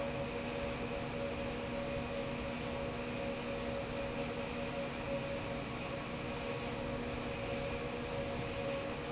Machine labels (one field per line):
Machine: fan